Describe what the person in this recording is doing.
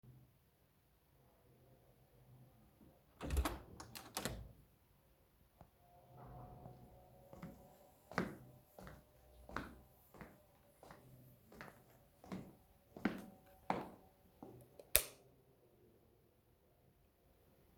I opened the entrance door and stepped into the hallway. I walked toward the light switch and turned it on to brighten the room. Then I continued walking further into the living room.